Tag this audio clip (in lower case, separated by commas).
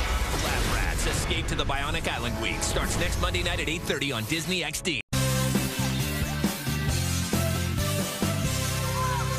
music, speech